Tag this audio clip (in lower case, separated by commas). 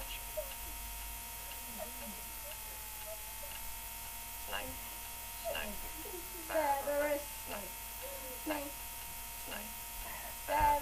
speech